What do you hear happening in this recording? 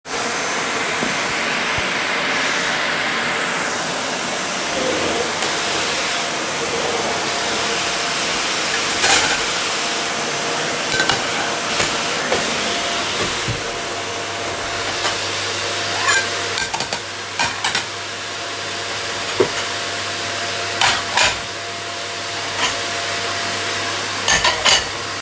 I placed the device on a shelf and turned on the vacuum cleaner. While it was running, I moved some plates and cutlery on the dining table.